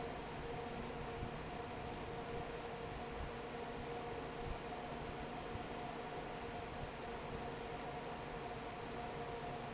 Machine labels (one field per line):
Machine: fan